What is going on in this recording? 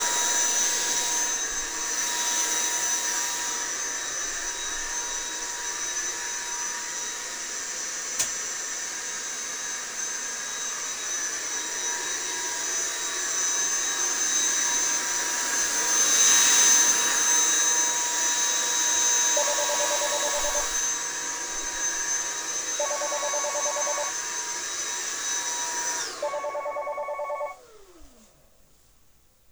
I was vacuuming and the phone started to ring. Additionally, the light switch was used while I was vacuuming.